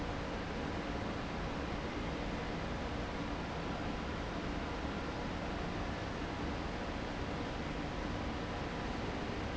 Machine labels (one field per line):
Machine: fan